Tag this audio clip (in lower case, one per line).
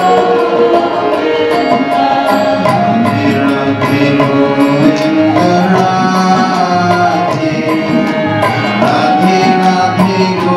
music
folk music